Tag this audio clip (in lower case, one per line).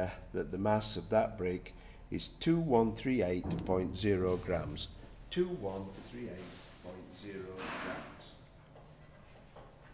speech